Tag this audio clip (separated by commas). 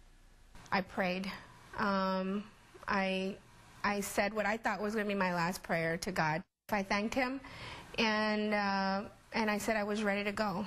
Speech